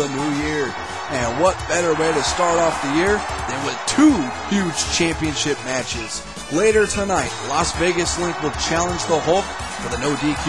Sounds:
music, speech

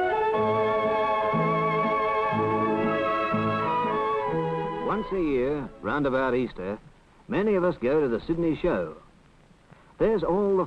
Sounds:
music, speech

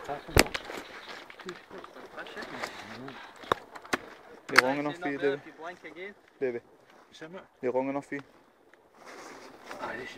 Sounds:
speech

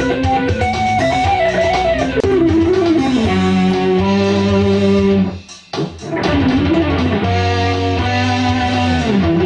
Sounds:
plucked string instrument, music, strum, musical instrument, guitar, electric guitar

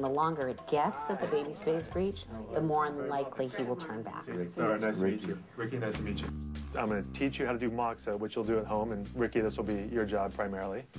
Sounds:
speech, inside a small room, music

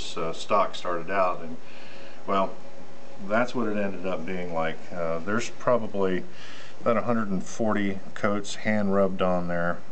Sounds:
speech

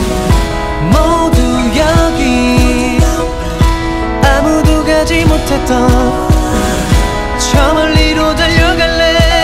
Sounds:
music

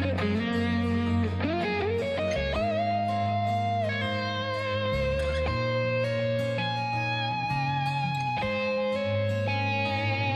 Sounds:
steel guitar, music

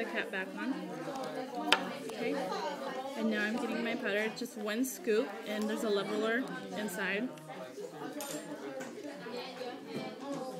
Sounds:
speech

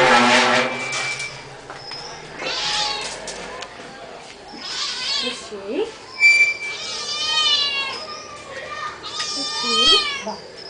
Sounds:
speech

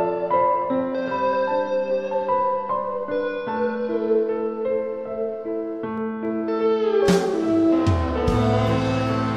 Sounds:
blues, music

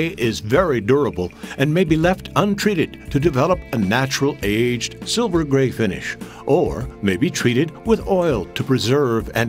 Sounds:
music, speech

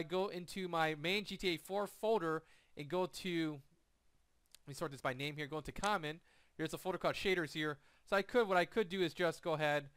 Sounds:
speech

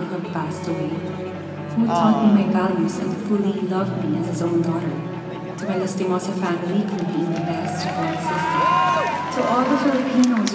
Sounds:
music, speech

